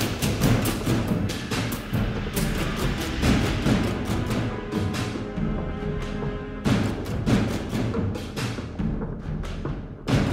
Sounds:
Timpani

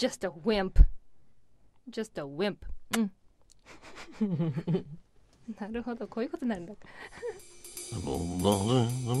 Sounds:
Speech, Music

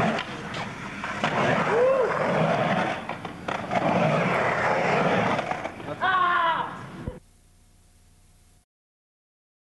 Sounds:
Speech

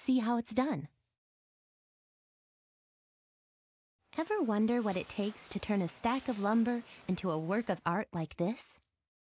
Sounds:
Speech

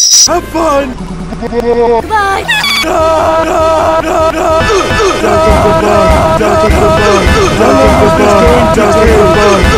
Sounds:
Music, Speech

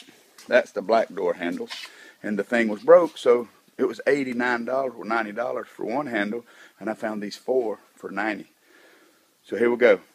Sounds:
Speech

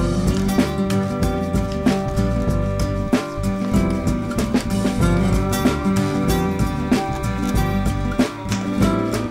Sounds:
Music

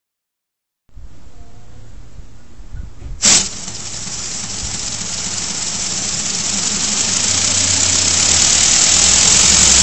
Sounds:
Engine

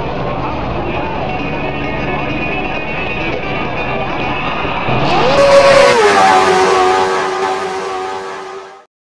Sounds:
Speech, Music, Car passing by, Vehicle, Car, Motor vehicle (road)

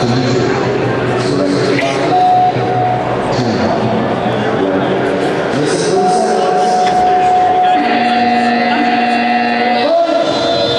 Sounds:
Speech

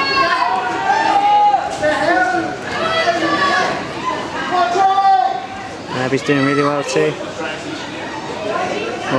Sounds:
Vehicle, canoe, Speech

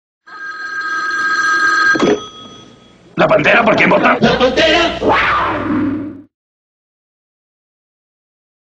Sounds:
Speech

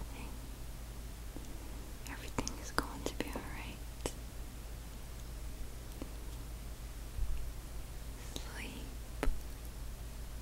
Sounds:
people whispering

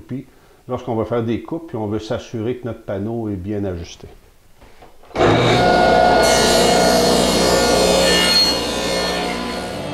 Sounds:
planing timber

